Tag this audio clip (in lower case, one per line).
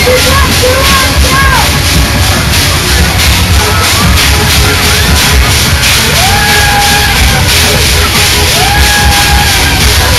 speech
music